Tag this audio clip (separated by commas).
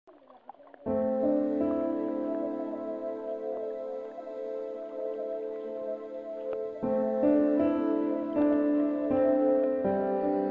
Music, New-age music